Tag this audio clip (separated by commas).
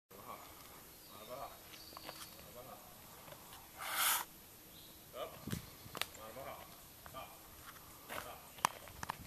Speech, Animal, livestock